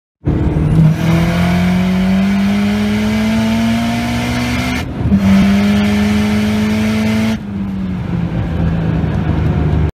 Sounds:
motor vehicle (road), car, vehicle

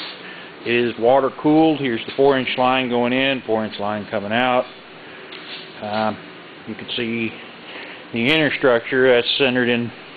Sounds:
speech

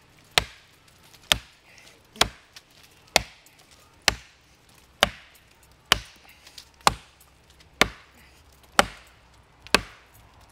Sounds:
tools

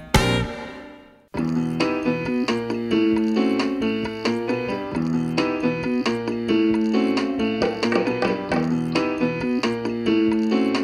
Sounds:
electric piano

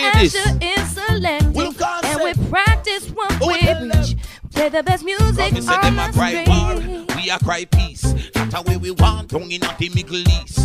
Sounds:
music

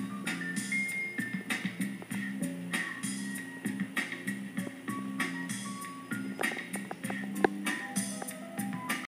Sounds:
music

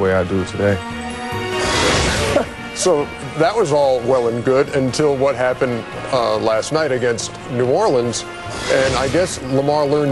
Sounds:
music, speech

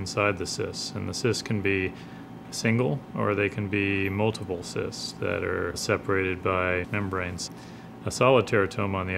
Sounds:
speech

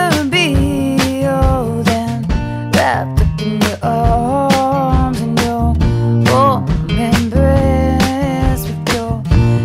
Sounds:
music

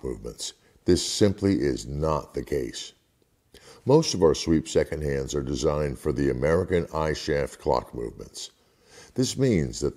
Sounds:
speech

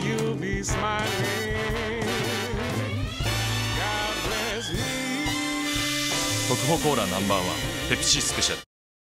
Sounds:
music, speech

